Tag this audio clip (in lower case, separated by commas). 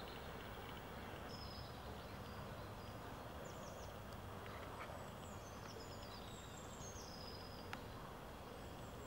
bird, animal